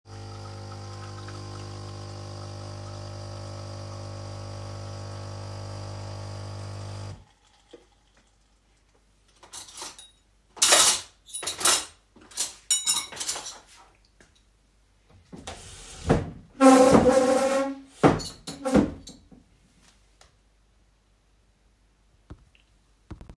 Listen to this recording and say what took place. I was pouring coffee from the coffee machine .Then I sorted my cutlery and I moved the chairs to aside